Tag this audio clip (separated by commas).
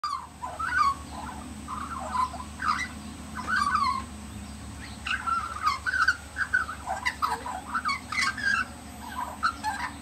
magpie calling